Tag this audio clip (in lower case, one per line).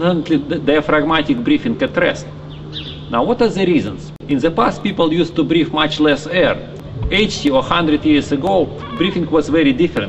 speech